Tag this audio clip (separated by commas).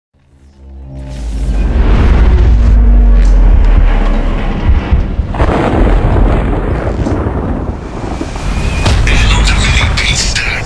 Thunderstorm, Speech